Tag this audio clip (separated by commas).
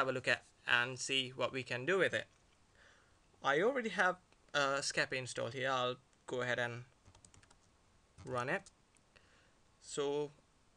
Speech